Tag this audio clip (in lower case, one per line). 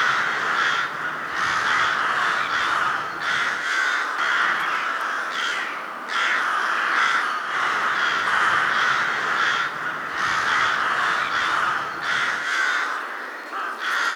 bird
wild animals
animal
crow